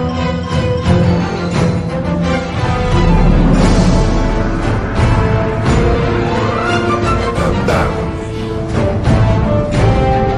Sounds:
music, rhythm and blues

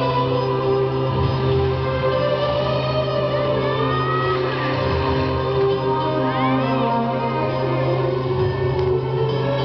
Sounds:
speech, music

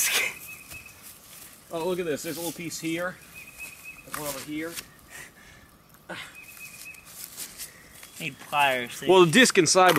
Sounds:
outside, rural or natural, speech

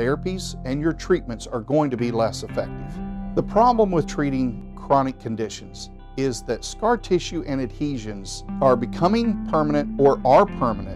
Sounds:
music, speech

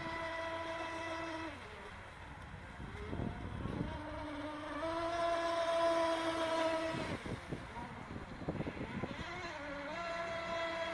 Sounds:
vehicle, motorboat

